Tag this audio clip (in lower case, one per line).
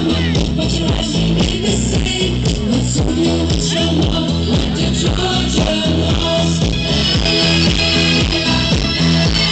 music